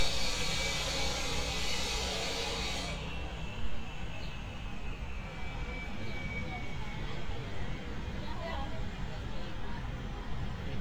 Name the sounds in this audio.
unidentified impact machinery, person or small group talking